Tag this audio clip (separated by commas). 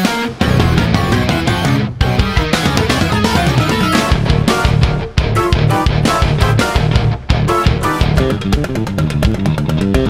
Bass guitar